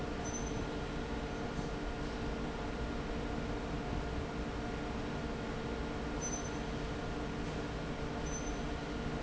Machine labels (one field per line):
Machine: fan